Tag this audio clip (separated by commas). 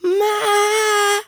Human voice, Male singing, Singing